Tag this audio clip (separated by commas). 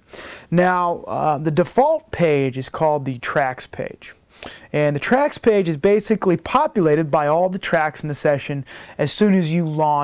Speech